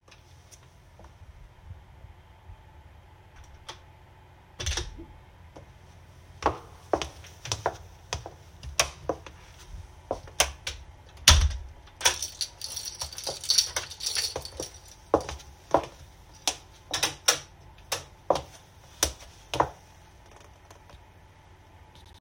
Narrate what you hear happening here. I opened the door, walked a few steps, shook my keychain, and turned the light switch on and off.